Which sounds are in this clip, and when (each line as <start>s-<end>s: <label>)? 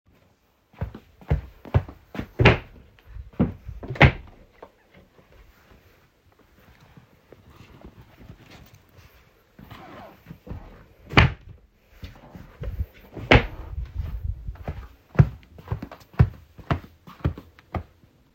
0.0s-18.3s: footsteps
2.3s-4.5s: wardrobe or drawer
11.0s-13.7s: wardrobe or drawer